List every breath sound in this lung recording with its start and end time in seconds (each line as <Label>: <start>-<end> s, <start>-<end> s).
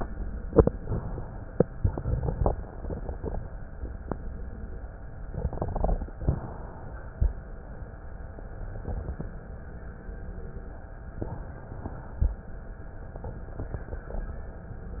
Inhalation: 0.71-1.52 s, 6.20-7.01 s